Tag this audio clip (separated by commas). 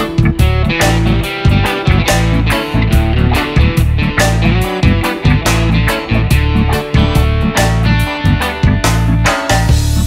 Background music, Music